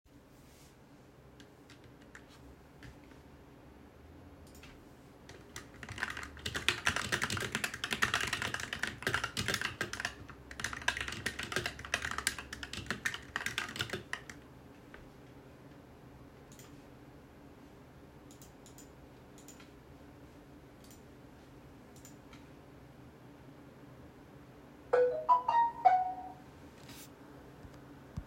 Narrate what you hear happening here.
I was typing on my keyboard and using my computer mouse as I recieved a notifcation from my cellular phone.